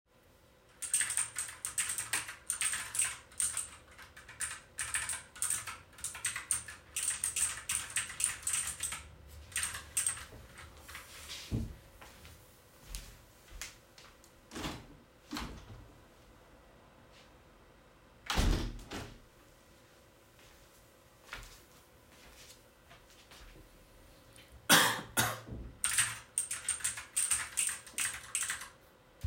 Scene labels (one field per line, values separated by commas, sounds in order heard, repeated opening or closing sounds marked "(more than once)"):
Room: office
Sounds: keyboard typing, footsteps, window (more than once)